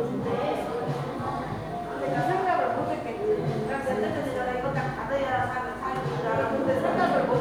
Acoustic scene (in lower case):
crowded indoor space